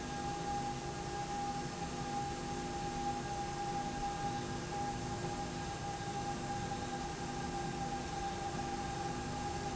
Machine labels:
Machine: slide rail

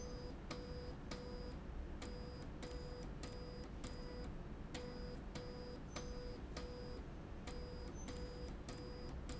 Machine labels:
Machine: slide rail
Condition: abnormal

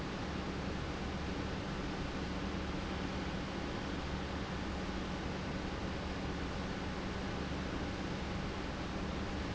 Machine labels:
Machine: pump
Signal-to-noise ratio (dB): -6 dB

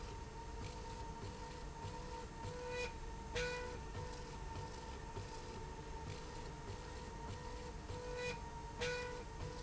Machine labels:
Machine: slide rail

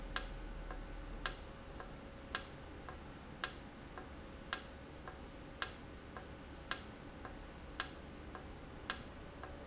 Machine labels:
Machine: valve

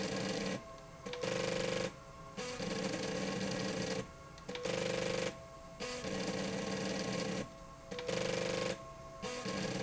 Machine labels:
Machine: slide rail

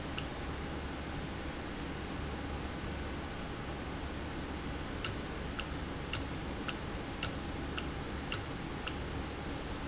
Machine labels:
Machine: valve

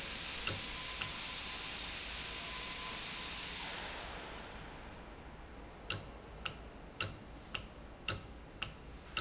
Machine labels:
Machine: valve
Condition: normal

